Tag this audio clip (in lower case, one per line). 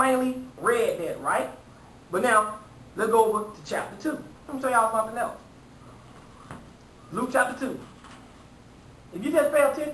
inside a small room
speech